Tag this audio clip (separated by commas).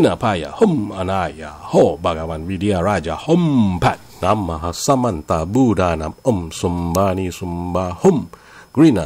Mantra